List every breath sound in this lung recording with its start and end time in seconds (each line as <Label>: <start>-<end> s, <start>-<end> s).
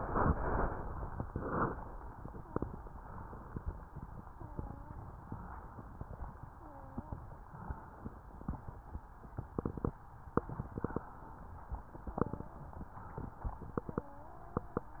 Wheeze: 4.27-5.01 s, 6.55-7.29 s, 12.03-12.64 s, 13.98-14.72 s